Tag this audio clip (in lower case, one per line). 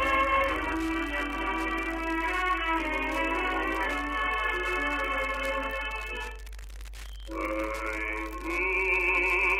music